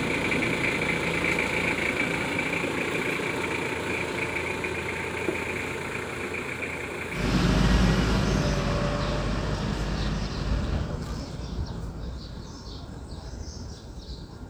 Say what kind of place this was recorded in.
residential area